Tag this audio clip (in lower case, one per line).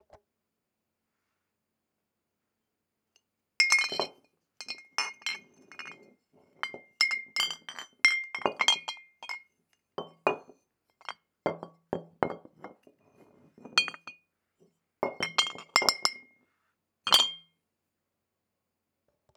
clink
glass